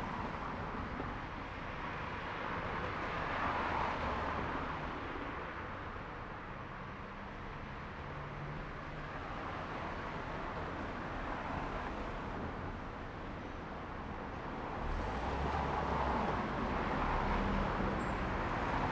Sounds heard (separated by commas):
car engine accelerating, car wheels rolling, car